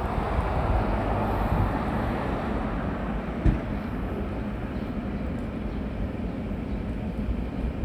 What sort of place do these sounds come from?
residential area